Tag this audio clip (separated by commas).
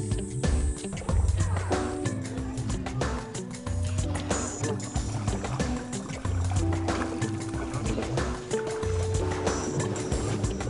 canoe, Water vehicle